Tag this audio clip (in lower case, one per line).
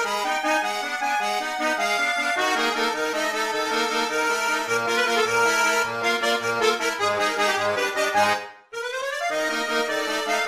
video game music
music